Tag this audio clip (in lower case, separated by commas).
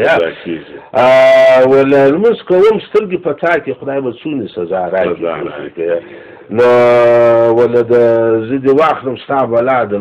speech